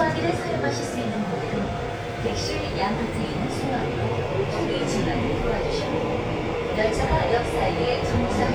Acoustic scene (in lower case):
subway train